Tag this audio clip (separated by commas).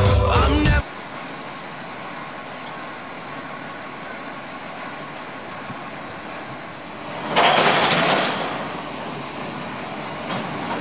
Truck, Vehicle, Music